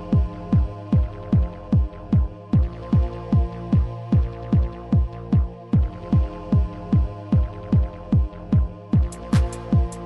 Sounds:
Techno, Electronic music, Music

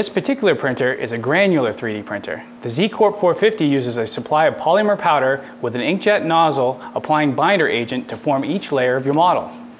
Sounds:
Speech

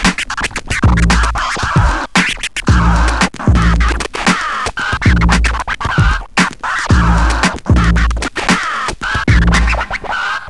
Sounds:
Music, Scratching (performance technique)

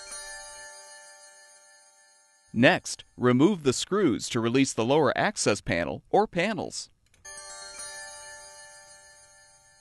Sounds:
Speech

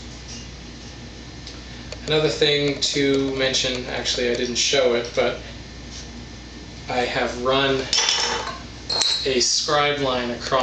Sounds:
Speech

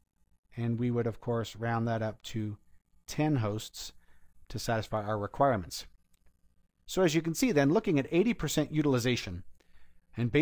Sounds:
Speech synthesizer

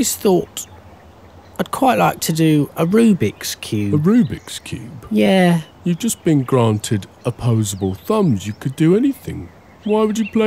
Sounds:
Speech

